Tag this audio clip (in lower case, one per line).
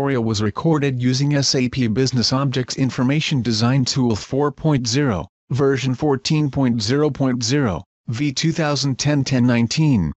speech